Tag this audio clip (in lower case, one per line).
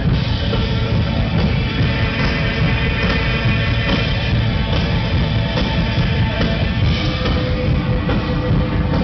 drum kit
music
drum
rock music